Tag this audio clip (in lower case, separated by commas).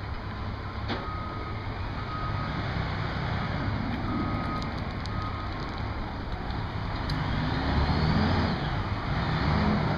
outside, urban or man-made